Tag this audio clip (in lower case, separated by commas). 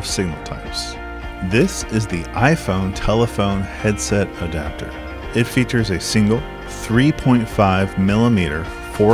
speech, music